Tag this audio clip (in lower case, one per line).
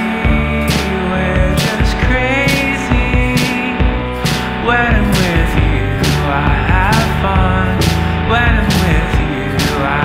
music